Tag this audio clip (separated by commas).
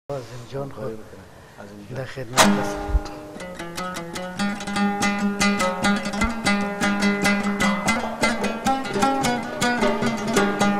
Zither